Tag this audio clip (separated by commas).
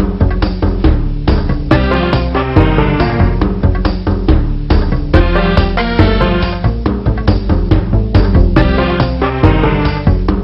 Music